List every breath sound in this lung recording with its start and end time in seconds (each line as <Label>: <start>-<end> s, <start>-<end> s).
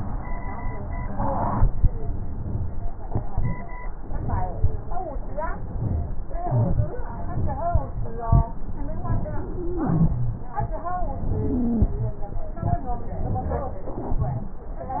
Inhalation: 0.89-1.73 s, 5.52-6.15 s
Wheeze: 0.89-1.73 s, 5.71-6.15 s, 9.56-10.40 s, 11.38-11.90 s